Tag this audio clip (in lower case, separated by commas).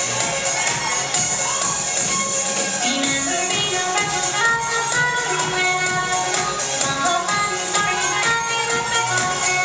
music